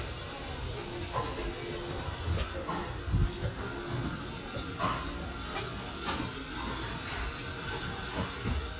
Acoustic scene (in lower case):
restaurant